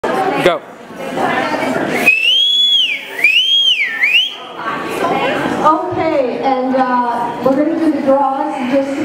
A crowd of people chit chat then a man speaks and someone whistles, then a person on a microphone begins speaking